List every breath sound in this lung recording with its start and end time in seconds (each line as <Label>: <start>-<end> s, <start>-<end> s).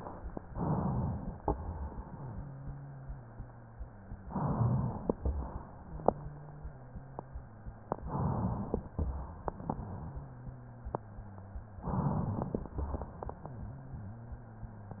Inhalation: 0.47-1.38 s, 4.23-5.20 s, 8.04-8.89 s, 11.76-12.71 s
Exhalation: 1.42-4.21 s, 5.20-8.00 s, 8.95-11.74 s, 12.75-15.00 s
Wheeze: 2.08-4.21 s, 5.75-7.93 s, 9.53-11.72 s, 13.40-15.00 s